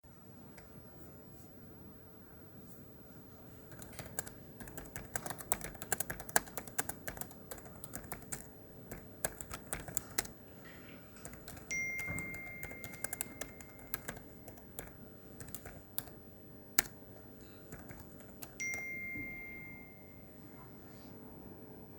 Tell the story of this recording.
I was typing with keyboard while I received some messages